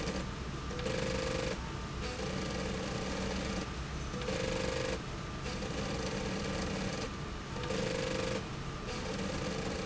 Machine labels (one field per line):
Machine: slide rail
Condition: abnormal